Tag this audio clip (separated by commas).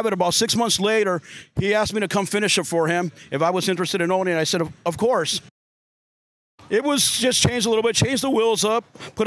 Speech